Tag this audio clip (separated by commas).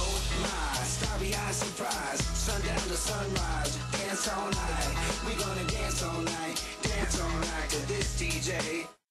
Music